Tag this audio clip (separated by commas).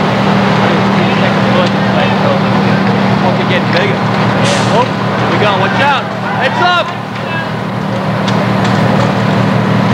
Speech, Crackle